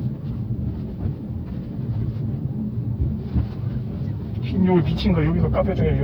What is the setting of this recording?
car